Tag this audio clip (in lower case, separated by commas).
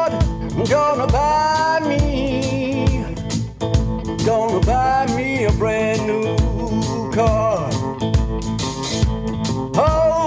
music, blues